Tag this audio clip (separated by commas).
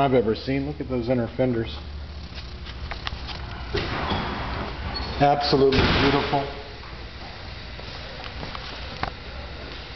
Speech